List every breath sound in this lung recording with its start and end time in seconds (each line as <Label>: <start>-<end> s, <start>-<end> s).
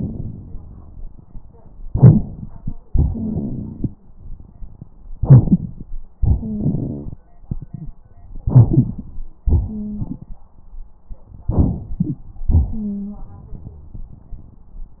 Inhalation: 1.84-2.71 s, 5.14-6.00 s, 8.47-9.23 s, 11.45-12.25 s
Exhalation: 2.92-3.97 s, 6.21-7.21 s, 9.44-10.40 s
Wheeze: 6.39-6.66 s, 9.67-10.05 s, 12.71-13.16 s
Rhonchi: 2.92-3.97 s, 6.61-7.12 s